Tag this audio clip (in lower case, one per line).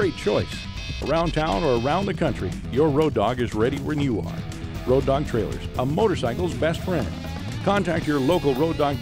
speech
music